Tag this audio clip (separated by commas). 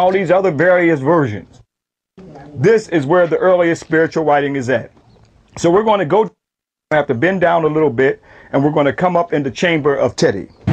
Speech